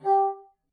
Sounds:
musical instrument, music, wind instrument

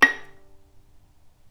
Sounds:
bowed string instrument, musical instrument, music

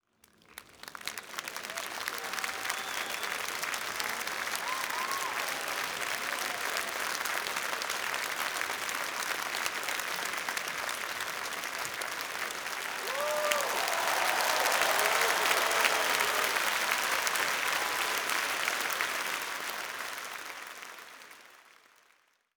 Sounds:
applause, human group actions

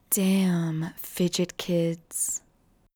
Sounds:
speech, woman speaking, human voice

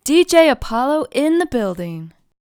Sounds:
speech, human voice, woman speaking

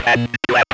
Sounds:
speech, human voice

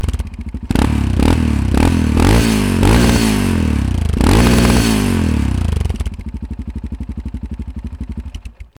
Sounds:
motor vehicle (road), vehicle, motorcycle

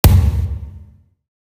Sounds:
thump

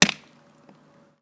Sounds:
tools

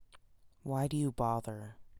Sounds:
human voice

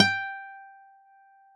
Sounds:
guitar, musical instrument, music, plucked string instrument, acoustic guitar

